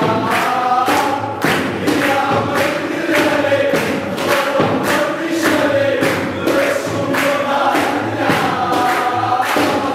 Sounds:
Mantra, Music

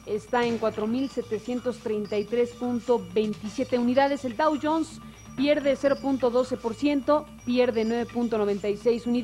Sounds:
Music, Speech, Radio

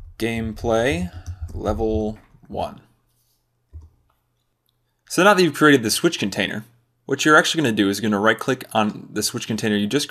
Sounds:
Speech

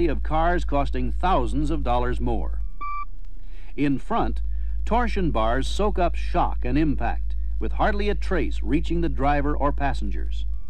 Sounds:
Speech

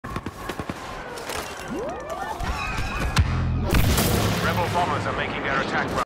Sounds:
Speech

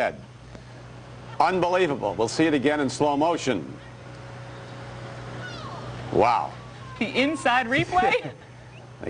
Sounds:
Speech

